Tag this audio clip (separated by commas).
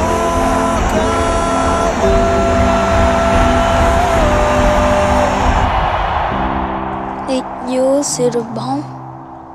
Music, Speech